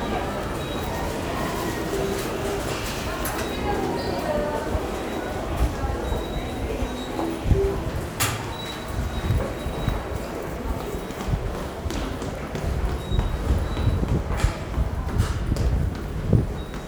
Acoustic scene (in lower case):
subway station